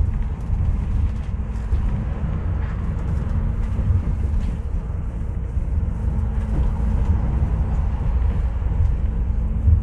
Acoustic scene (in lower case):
bus